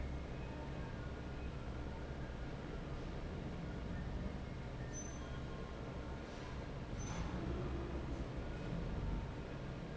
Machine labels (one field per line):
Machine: fan